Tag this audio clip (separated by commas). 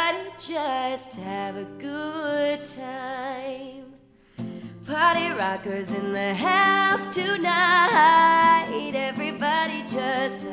Music